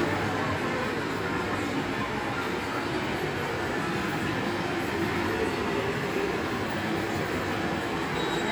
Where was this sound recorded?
in a subway station